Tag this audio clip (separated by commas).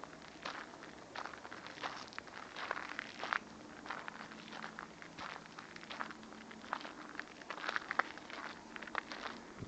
Crackle